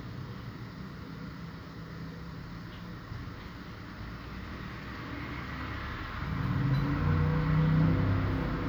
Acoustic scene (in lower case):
street